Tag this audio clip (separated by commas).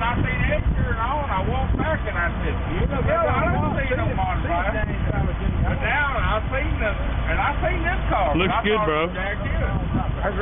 Speech